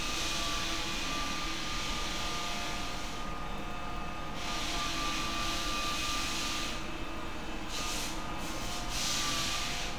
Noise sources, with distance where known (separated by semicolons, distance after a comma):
large rotating saw